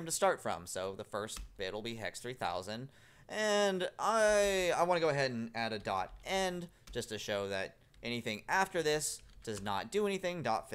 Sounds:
speech

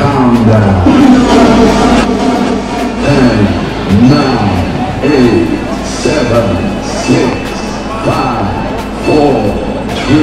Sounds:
speech

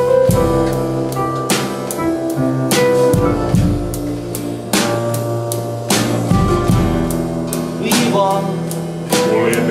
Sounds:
speech
music

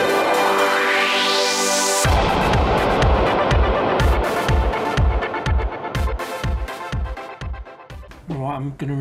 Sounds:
speech
music

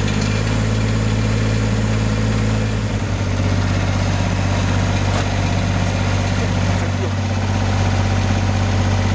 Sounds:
tractor digging

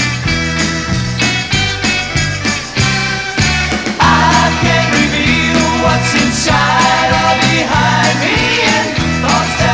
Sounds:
music

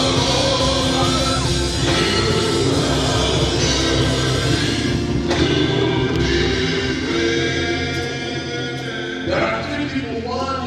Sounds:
singing
music
choir
crowd
christian music
gospel music

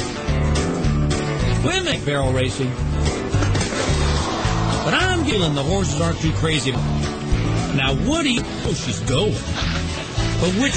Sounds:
speech
music

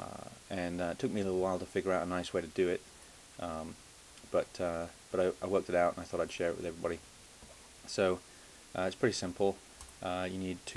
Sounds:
speech

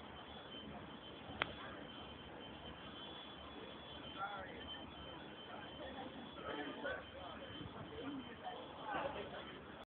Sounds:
speech

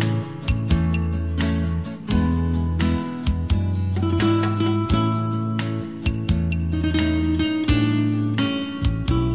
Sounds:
guitar
musical instrument
electric guitar
music
bass guitar

